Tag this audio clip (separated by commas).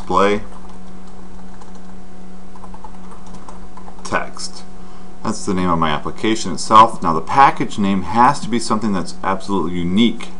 Speech, Typing